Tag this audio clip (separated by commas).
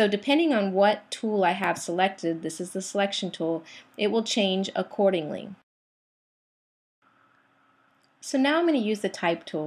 Speech